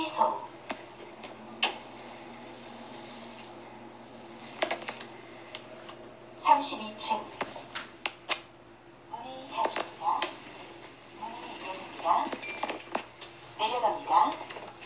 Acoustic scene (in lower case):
elevator